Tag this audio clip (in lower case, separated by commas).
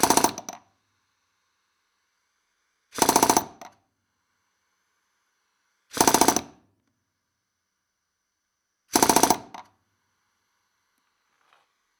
tools